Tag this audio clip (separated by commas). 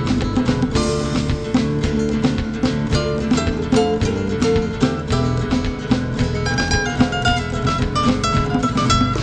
Guitar, Musical instrument, Music, Plucked string instrument